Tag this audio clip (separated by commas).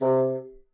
woodwind instrument, Music, Musical instrument